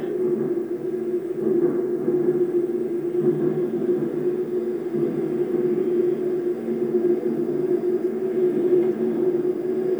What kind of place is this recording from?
subway train